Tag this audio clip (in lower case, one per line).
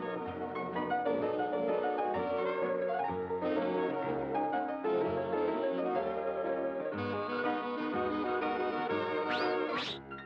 music